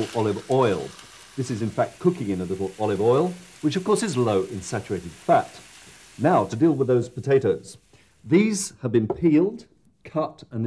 A man talks while something is fried